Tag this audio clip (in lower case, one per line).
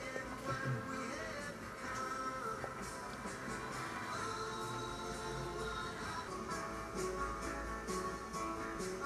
music